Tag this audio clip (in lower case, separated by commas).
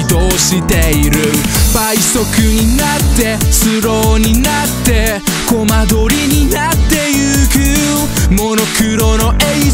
music